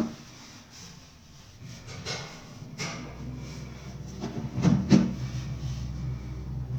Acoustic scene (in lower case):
elevator